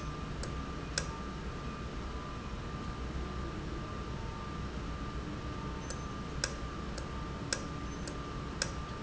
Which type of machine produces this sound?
valve